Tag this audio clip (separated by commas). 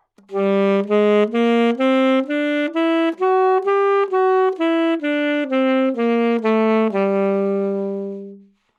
Musical instrument, Wind instrument, Music